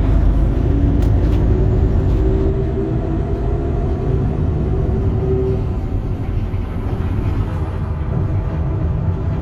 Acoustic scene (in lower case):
bus